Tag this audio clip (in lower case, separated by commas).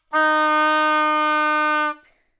woodwind instrument, music, musical instrument